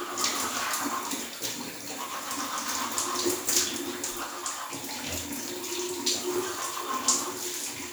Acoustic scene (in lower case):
restroom